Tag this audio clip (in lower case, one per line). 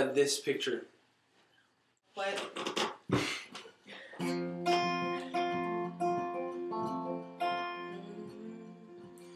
music
speech